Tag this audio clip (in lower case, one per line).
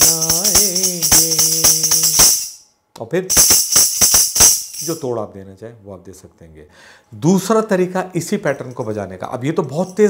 playing tambourine